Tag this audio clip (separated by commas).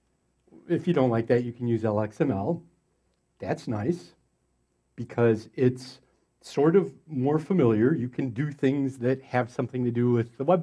Speech